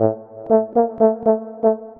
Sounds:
Brass instrument, Musical instrument, Music

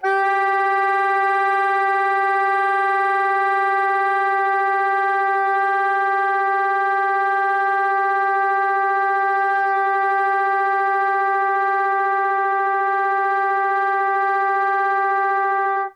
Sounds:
Music, Musical instrument, Wind instrument

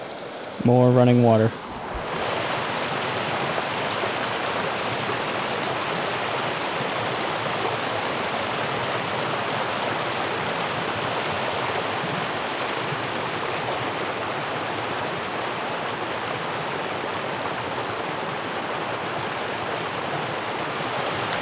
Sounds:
Stream, Water

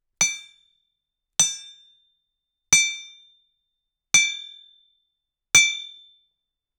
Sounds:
Tools, Hammer

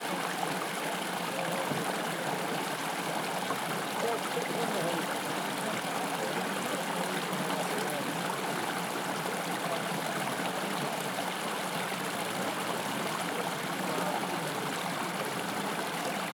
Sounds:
Chatter, Stream, Water, Human group actions

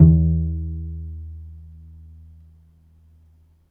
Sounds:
Bowed string instrument, Musical instrument, Music

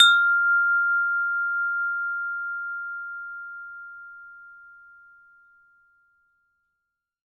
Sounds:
Wind chime, Bell, Chime

